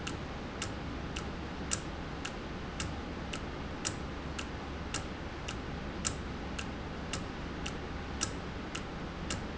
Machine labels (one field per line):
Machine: valve